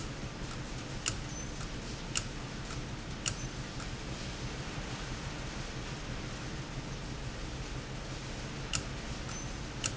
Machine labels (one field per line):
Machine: valve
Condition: abnormal